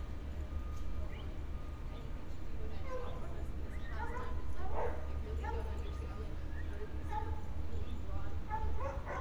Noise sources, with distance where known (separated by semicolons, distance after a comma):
reverse beeper; unidentified human voice; dog barking or whining